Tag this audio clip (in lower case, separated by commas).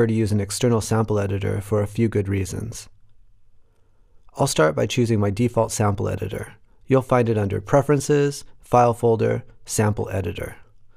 speech